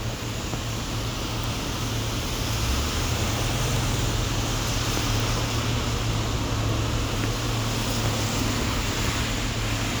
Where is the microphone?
on a street